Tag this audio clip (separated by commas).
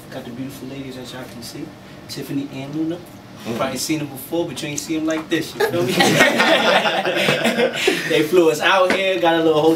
Speech